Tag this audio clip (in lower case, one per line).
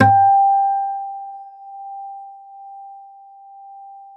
music
plucked string instrument
guitar
acoustic guitar
musical instrument